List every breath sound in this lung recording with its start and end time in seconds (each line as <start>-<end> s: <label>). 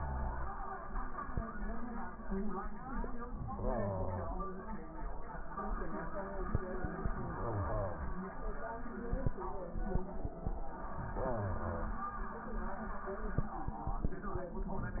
3.40-4.58 s: inhalation
7.07-8.24 s: inhalation
10.94-12.12 s: inhalation